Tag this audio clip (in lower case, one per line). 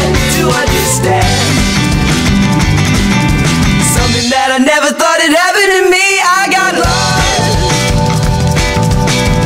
music